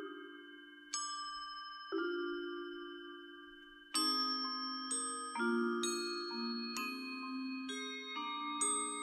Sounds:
music

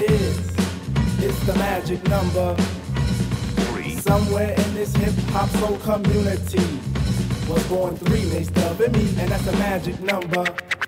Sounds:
music

